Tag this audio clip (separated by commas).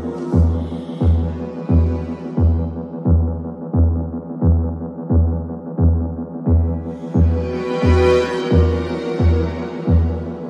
Mains hum, Throbbing